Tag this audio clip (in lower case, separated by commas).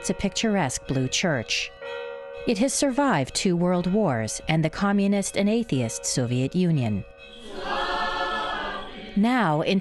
music, speech